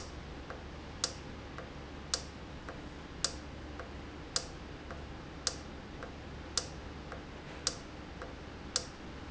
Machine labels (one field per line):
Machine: valve